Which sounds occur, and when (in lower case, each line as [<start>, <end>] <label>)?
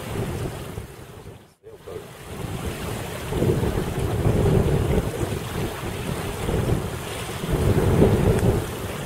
[0.00, 0.93] wind noise (microphone)
[0.00, 9.05] surf
[0.00, 9.05] wind
[1.61, 2.06] man speaking
[2.25, 2.97] wind noise (microphone)
[3.31, 6.95] wind noise (microphone)
[7.40, 8.63] wind noise (microphone)